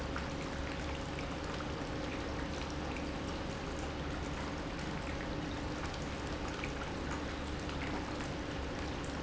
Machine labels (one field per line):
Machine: pump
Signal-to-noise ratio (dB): -6 dB